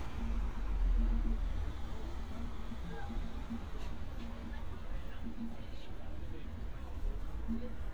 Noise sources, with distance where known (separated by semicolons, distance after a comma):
engine of unclear size, far; music from a fixed source; person or small group talking, far